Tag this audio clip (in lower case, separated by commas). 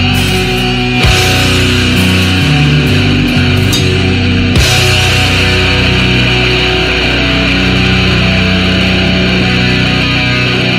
independent music, music, theme music